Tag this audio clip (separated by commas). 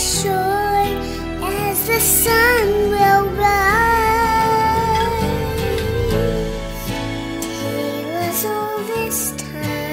child singing